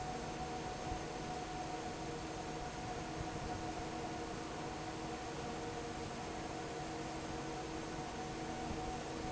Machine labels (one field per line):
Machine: fan